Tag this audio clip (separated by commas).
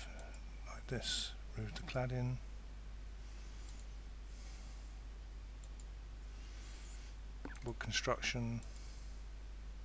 Speech